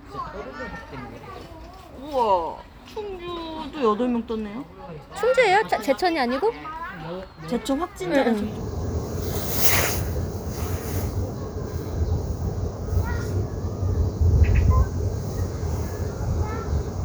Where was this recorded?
in a park